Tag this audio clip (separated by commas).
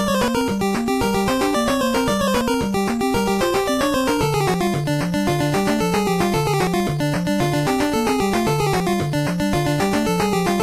Music